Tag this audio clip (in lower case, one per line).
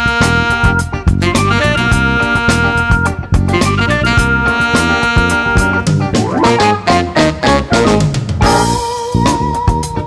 music